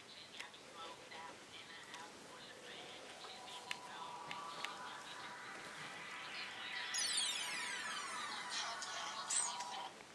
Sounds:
music, speech

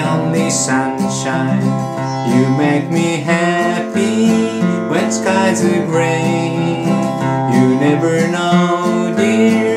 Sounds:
male singing, music

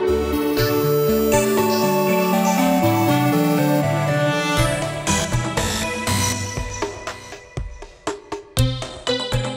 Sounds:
music

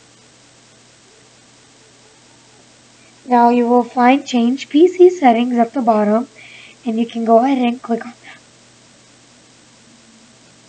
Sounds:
speech

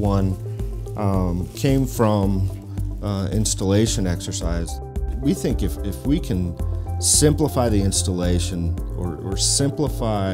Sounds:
music, speech

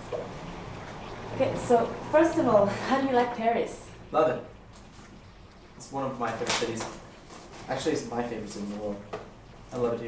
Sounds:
speech

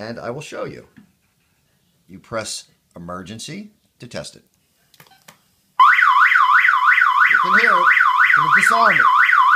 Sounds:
siren, speech

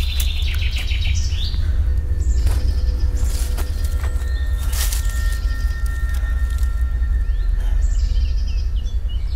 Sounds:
music, arrow

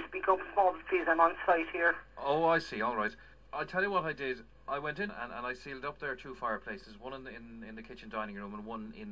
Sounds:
speech

